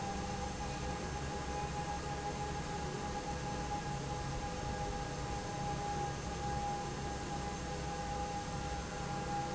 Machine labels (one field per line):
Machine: fan